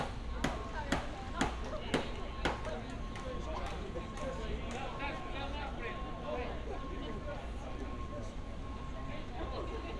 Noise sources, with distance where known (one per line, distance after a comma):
non-machinery impact, near